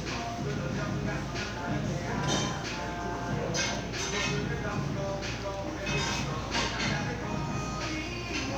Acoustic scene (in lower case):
crowded indoor space